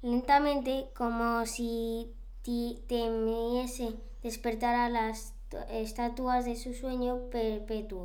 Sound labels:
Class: speech